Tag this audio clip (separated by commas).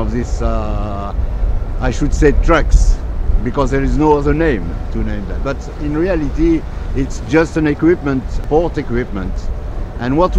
Speech